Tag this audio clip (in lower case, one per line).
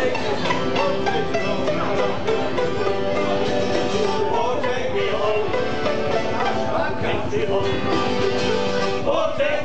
bluegrass
singing
music